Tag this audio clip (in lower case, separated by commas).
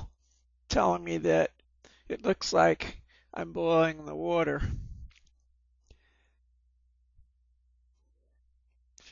speech